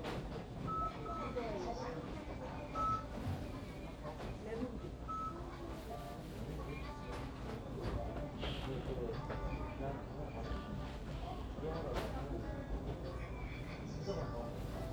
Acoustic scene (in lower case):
crowded indoor space